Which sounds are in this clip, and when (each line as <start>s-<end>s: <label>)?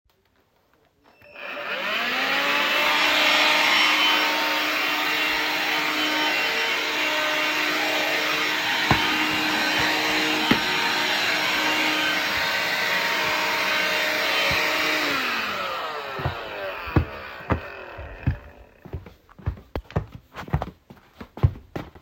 1.2s-18.6s: vacuum cleaner
8.7s-9.1s: footsteps
10.4s-10.6s: footsteps
16.1s-21.9s: footsteps